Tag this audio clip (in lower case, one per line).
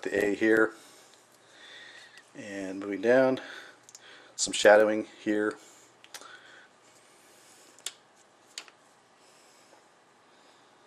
speech